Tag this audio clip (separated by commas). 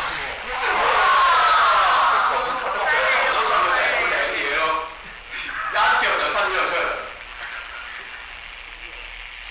Speech